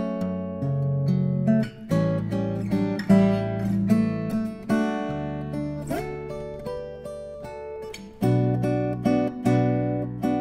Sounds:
Music, Acoustic guitar

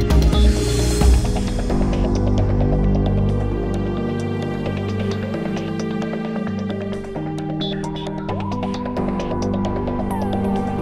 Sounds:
Music

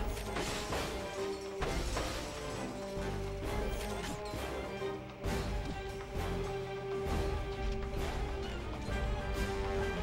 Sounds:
Music

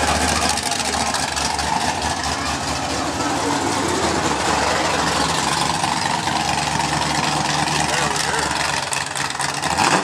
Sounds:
Speech

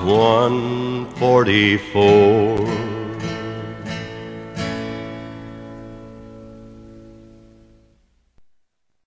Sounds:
Singing

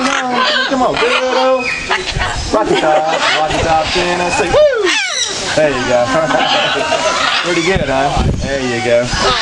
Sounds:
Bird, Male singing

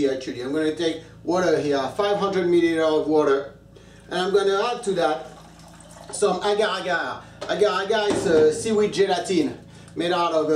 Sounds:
Speech

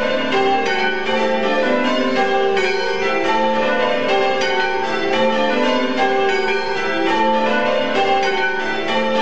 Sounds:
church bell ringing

